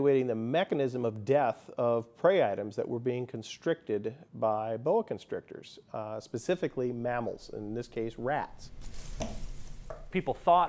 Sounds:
Snake, Animal, Speech

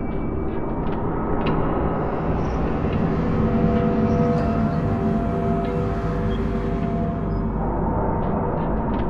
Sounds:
Music, Ambient music

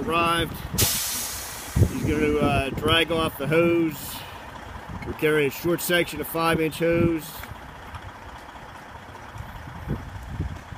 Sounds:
Speech

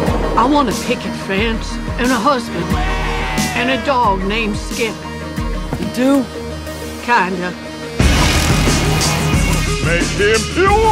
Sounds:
Music, Speech

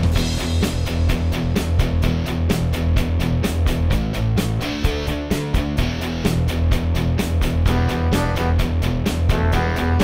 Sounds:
Music

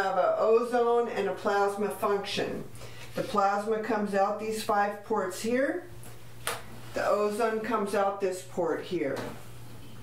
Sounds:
Speech

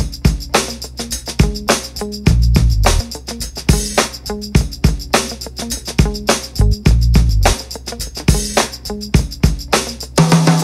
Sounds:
Music

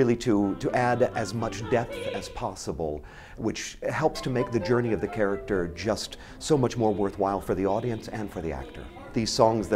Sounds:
Tender music, Speech, Music

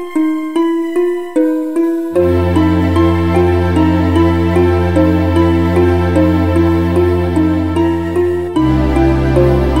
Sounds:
Music

